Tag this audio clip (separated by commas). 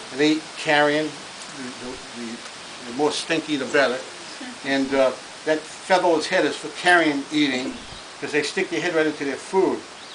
Speech